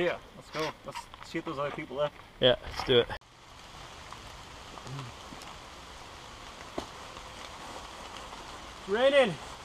Two men are having a conversation and wind is lightly blowing